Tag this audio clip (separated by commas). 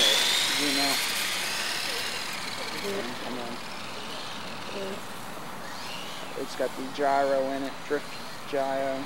Speech, Car